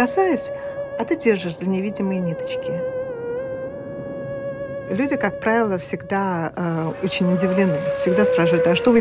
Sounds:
Speech, Music

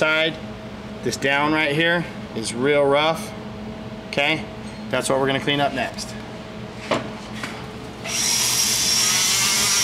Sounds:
inside a large room or hall, Speech

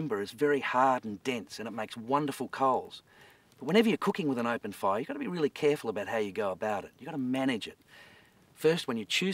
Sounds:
Speech

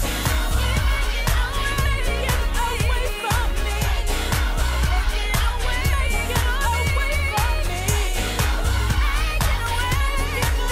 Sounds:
Music, Gospel music, Choir, inside a public space, Singing

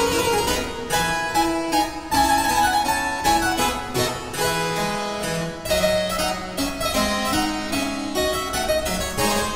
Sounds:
playing harpsichord

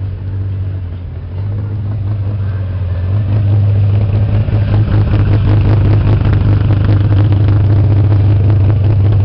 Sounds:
Rustle

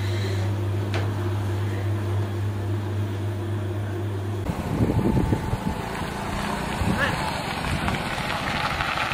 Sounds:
inside a small room, outside, urban or man-made, Speech

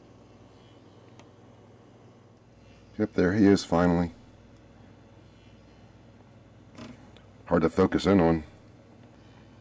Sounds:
Mouse, Speech

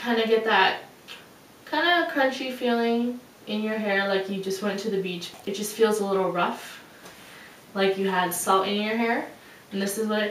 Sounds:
Speech

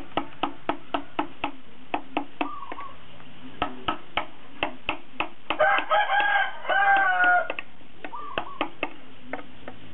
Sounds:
Crowing, inside a large room or hall

